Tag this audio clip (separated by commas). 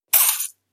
Liquid